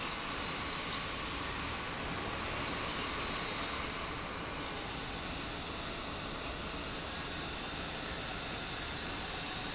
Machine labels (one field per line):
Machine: pump